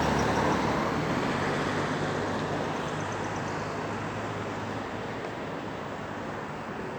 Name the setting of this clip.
street